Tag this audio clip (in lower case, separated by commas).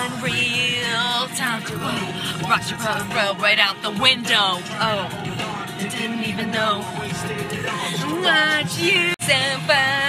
female singing, music, rapping, male singing